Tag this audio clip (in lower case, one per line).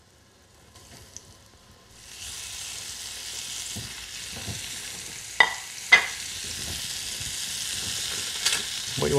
sizzle
frying (food)